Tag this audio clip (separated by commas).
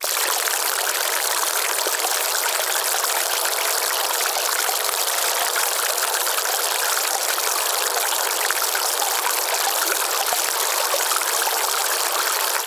Drip, Stream, Water, Pour, dribble, Liquid